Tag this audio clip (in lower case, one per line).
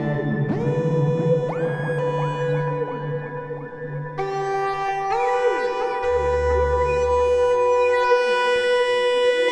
music
electronica
synthesizer
electronic music